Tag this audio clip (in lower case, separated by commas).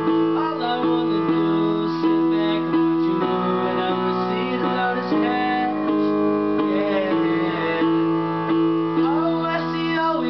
music, male singing